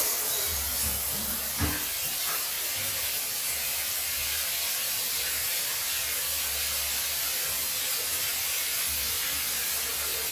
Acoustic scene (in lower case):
restroom